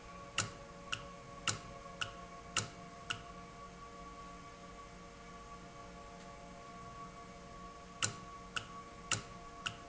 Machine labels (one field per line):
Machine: valve